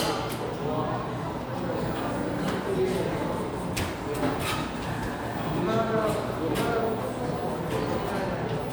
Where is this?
in a crowded indoor space